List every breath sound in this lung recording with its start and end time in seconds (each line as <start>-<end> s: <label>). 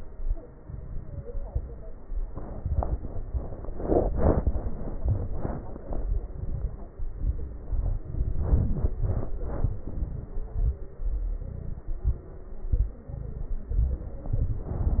0.55-1.18 s: crackles
0.57-1.19 s: inhalation
6.33-6.95 s: inhalation
6.33-6.95 s: crackles
6.99-7.67 s: exhalation
6.99-7.67 s: crackles
8.02-8.87 s: inhalation
8.02-8.87 s: crackles
8.95-9.75 s: exhalation
8.95-9.75 s: crackles
9.88-10.54 s: inhalation
9.88-10.54 s: crackles
10.58-11.25 s: exhalation
10.58-11.25 s: crackles
11.42-12.24 s: inhalation
11.42-12.24 s: crackles
12.71-13.54 s: exhalation
12.71-13.54 s: crackles
13.74-14.40 s: inhalation
13.74-14.35 s: crackles
14.40-15.00 s: exhalation
14.40-15.00 s: crackles